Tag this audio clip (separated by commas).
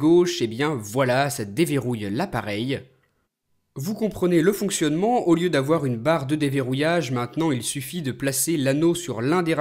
Speech